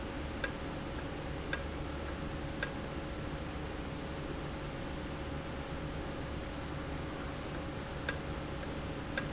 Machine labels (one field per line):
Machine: valve